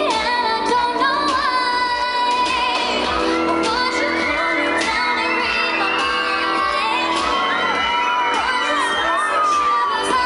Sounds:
music

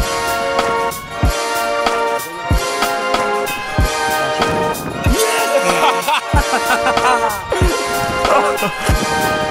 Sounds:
speech
music

